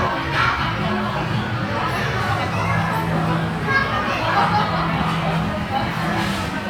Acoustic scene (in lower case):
restaurant